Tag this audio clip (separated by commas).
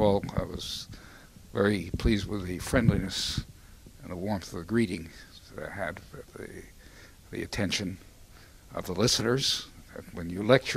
Speech